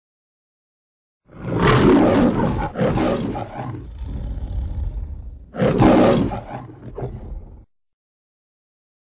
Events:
1.2s-7.7s: roar

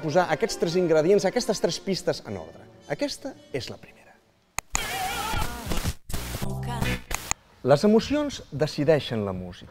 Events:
0.0s-2.5s: man speaking
0.0s-9.7s: music
2.8s-3.8s: man speaking
4.6s-5.9s: man speaking
4.7s-5.5s: male singing
4.7s-7.3s: static
6.4s-7.0s: female singing
7.6s-8.5s: man speaking
8.6s-9.7s: man speaking

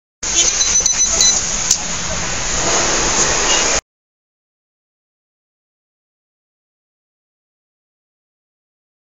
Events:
0.2s-3.8s: mechanisms
0.3s-0.5s: vehicle horn
0.6s-1.1s: beep
1.2s-1.3s: beep

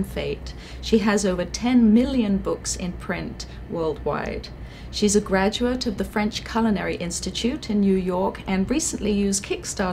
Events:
0.0s-0.5s: female speech
0.0s-9.9s: mechanisms
0.5s-0.8s: breathing
0.8s-3.4s: female speech
3.5s-3.6s: breathing
3.8s-4.5s: female speech
4.2s-4.3s: tick
4.6s-4.9s: breathing
4.9s-9.9s: female speech

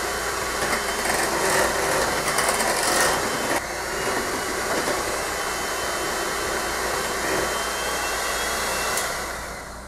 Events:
0.0s-9.8s: blender
8.9s-9.0s: tick

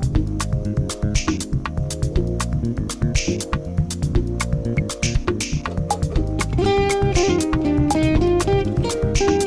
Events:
0.0s-9.4s: music

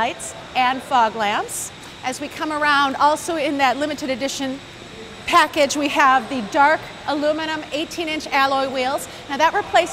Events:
0.0s-9.9s: background noise
0.5s-1.6s: woman speaking
2.1s-4.6s: woman speaking
5.2s-6.8s: woman speaking
7.0s-9.0s: woman speaking
9.2s-9.9s: woman speaking

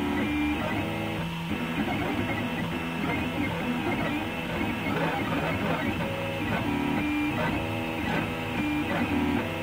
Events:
0.0s-9.6s: mechanisms
0.0s-9.6s: music

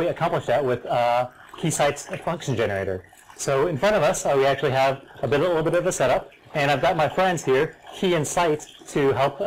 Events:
0.0s-1.2s: male speech
0.0s-9.4s: pour
1.5s-3.0s: male speech
3.3s-5.0s: male speech
5.2s-6.2s: male speech
6.5s-7.7s: male speech
7.9s-9.4s: male speech

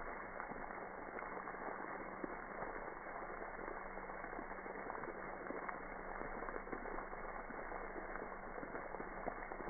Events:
0.0s-9.6s: water
0.0s-9.6s: background noise

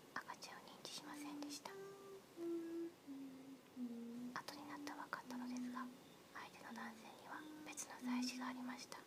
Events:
0.0s-9.0s: mechanisms
0.1s-1.7s: whispering
1.0s-3.5s: music
3.7s-6.0s: music
4.3s-5.9s: whispering
5.5s-5.6s: clicking
5.7s-6.2s: insect
6.3s-7.4s: whispering
6.4s-6.8s: insect
6.7s-9.0s: music
7.0s-7.9s: insect
7.6s-9.0s: whispering

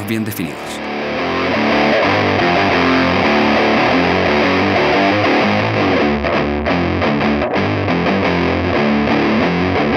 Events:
0.0s-9.9s: music
0.0s-0.8s: male speech

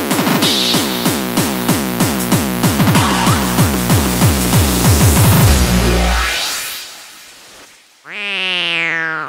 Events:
0.0s-9.2s: music
5.5s-8.0s: sound effect
7.7s-9.2s: reverberation
8.0s-9.2s: meow

